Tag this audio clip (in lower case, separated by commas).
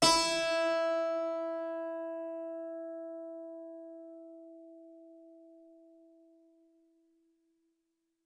musical instrument, music, keyboard (musical)